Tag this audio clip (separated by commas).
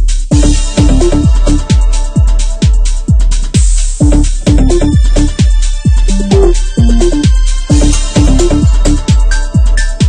Music